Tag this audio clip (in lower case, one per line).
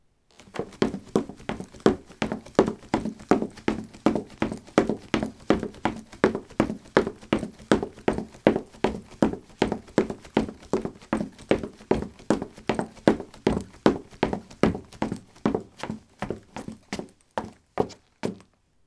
run